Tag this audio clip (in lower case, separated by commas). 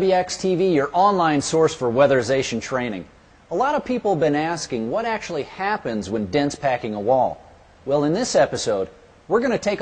speech